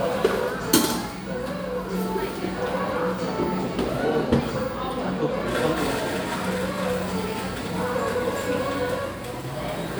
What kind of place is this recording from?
cafe